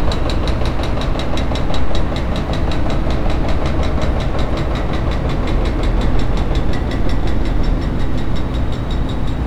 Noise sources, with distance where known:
unidentified impact machinery

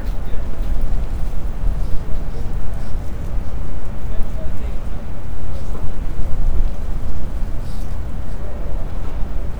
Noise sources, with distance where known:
person or small group talking

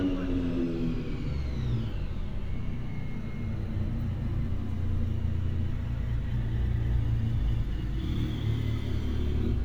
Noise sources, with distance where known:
medium-sounding engine, near

